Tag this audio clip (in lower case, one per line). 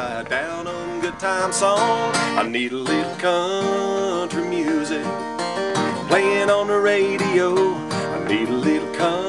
music
tender music